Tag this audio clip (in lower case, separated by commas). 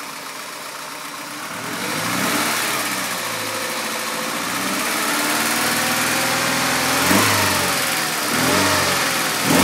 medium engine (mid frequency), vroom, vehicle